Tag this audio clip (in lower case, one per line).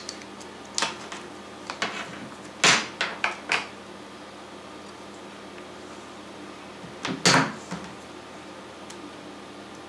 inside a small room